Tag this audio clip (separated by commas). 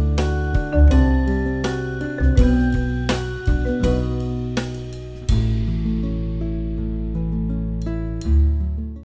Music